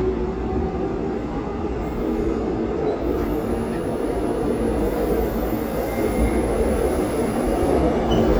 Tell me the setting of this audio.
subway train